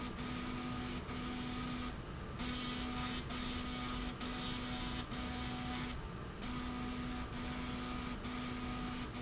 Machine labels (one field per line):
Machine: slide rail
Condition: abnormal